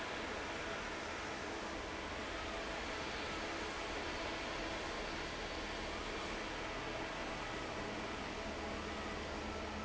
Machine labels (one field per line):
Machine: fan